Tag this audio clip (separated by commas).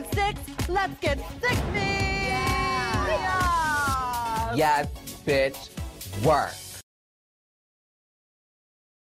Speech, Music